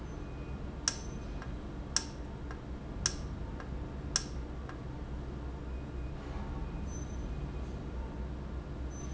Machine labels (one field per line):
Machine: valve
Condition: normal